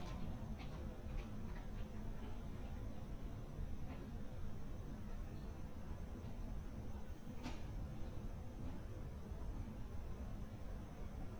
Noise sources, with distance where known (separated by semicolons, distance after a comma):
background noise